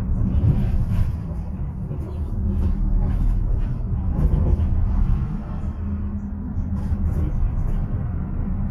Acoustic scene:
bus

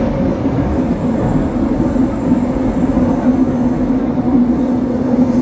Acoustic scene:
subway train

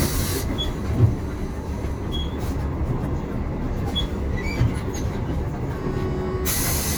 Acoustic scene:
bus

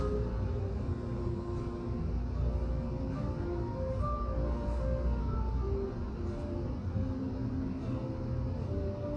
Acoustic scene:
cafe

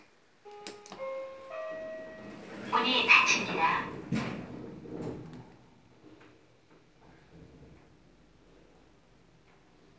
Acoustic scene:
elevator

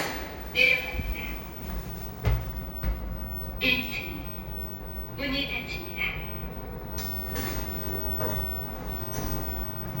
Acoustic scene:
elevator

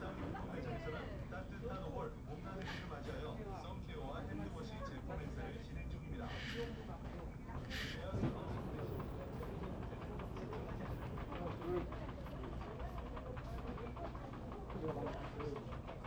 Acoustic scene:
crowded indoor space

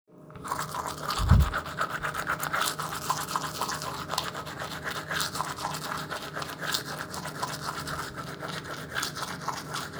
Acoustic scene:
restroom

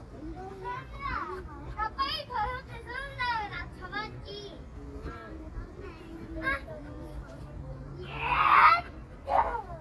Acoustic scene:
park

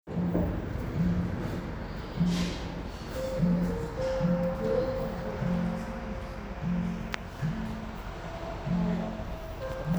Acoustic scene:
cafe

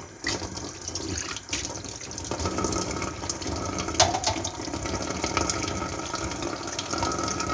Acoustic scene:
kitchen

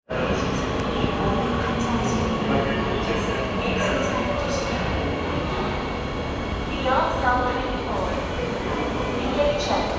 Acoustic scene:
subway station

